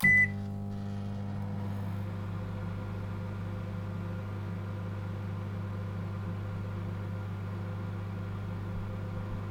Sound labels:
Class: microwave oven